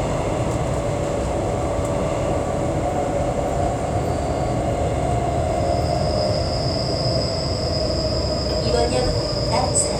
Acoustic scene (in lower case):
subway train